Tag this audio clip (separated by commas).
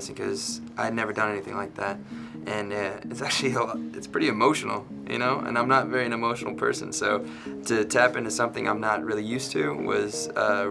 Speech, Music